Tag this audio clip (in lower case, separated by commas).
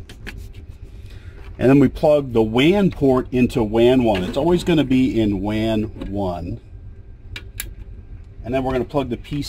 speech